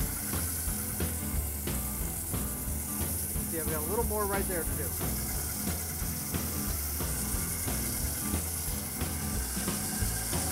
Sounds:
Drum kit, Music, Speech, Drum, Musical instrument

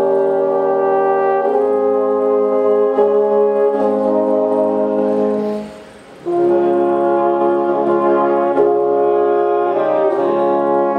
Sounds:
playing french horn

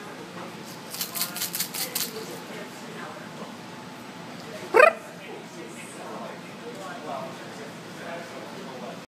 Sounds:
Rattle, Speech

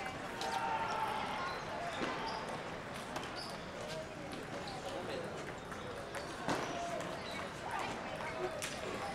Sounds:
Speech

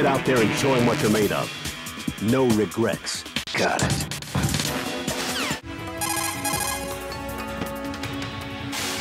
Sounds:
Speech, Music

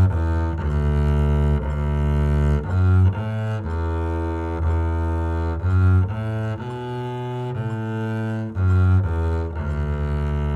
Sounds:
playing double bass

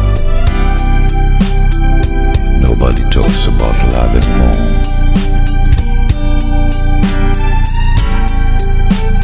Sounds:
Funk, Speech, Music

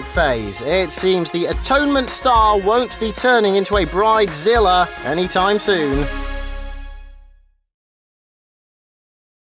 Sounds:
Speech, Music

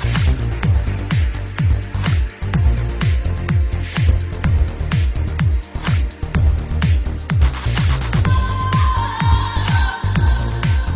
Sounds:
Music, Trance music

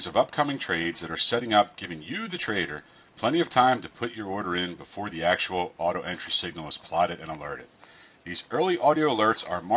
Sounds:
Speech

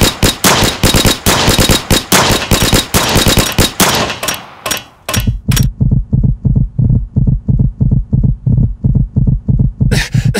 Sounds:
Sound effect, Tap

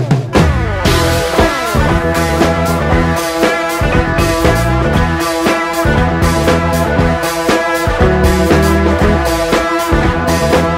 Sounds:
Music

